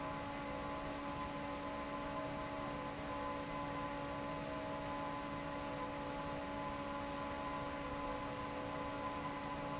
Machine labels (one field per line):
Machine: fan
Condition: normal